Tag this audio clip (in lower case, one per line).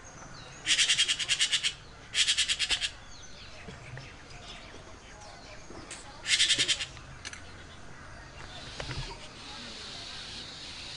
magpie calling